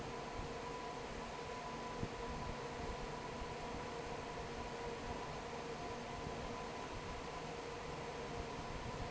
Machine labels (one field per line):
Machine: fan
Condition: normal